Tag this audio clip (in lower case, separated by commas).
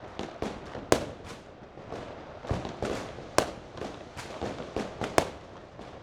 fireworks, explosion